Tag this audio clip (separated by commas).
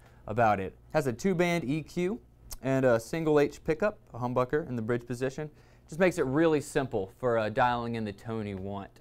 Speech